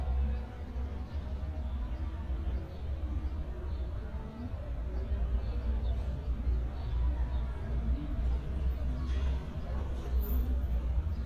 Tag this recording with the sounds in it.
medium-sounding engine, person or small group talking, amplified speech